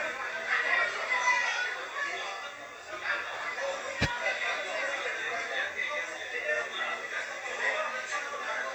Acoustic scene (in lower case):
crowded indoor space